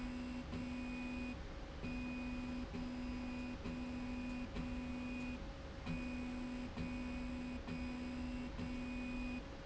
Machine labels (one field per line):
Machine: slide rail